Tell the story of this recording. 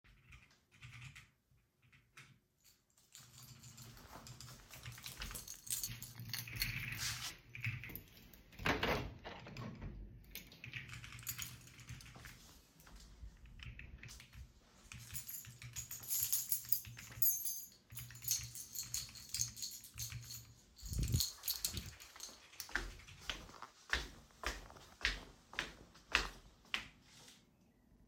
As I was typing on the keyboard someone came by with a keychain and opened the window, then walked away.